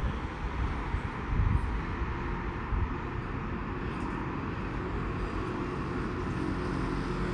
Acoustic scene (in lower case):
street